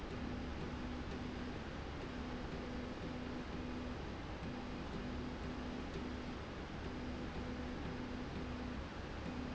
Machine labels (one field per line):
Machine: slide rail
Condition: normal